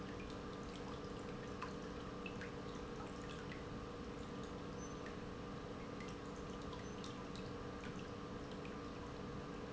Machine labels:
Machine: pump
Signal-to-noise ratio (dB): 6 dB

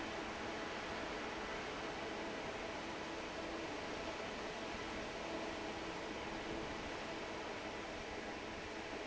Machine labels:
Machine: fan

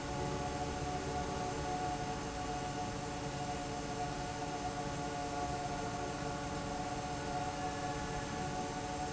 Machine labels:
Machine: fan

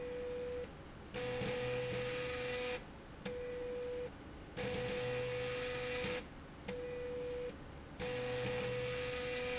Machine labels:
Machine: slide rail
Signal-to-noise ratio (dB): 6 dB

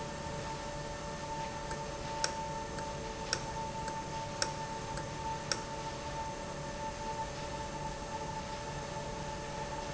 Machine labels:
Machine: valve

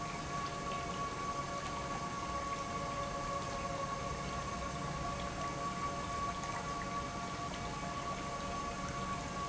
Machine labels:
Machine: pump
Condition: normal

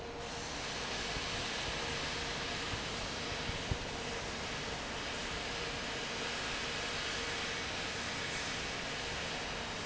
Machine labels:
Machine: fan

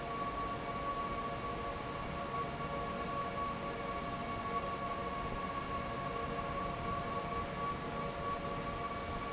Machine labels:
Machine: fan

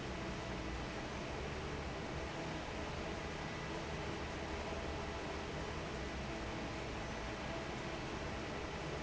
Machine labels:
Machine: fan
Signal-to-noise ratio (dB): 0 dB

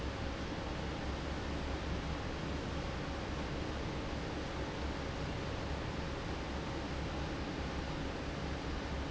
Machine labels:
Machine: fan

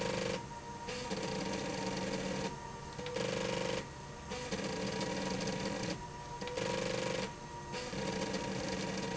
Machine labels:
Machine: slide rail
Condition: abnormal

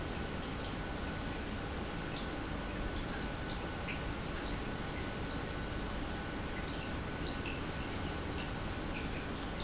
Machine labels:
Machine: pump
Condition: normal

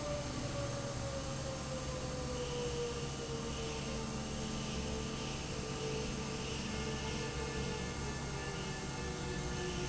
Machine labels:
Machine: fan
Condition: abnormal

